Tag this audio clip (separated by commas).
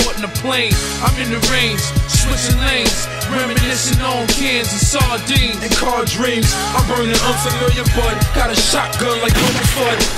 Artillery fire, Music